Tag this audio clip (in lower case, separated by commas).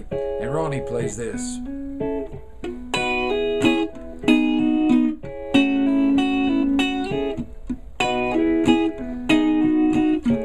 speech, music